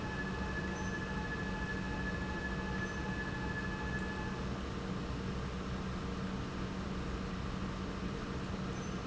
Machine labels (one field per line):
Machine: pump